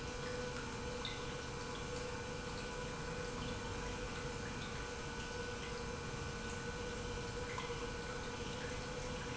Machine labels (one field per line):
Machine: pump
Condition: normal